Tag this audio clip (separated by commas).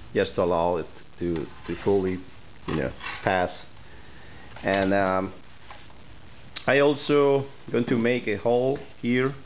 Speech